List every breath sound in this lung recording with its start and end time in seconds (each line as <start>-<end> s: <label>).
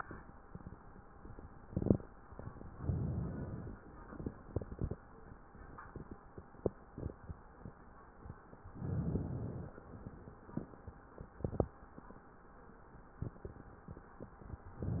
2.73-3.85 s: inhalation
8.63-9.75 s: inhalation
9.75-10.66 s: exhalation
14.78-15.00 s: inhalation